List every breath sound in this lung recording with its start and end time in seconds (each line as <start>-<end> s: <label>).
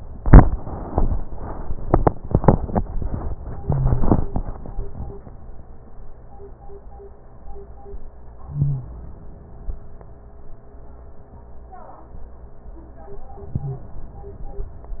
8.40-9.74 s: inhalation
8.51-8.88 s: wheeze
13.31-14.65 s: inhalation
13.62-13.90 s: wheeze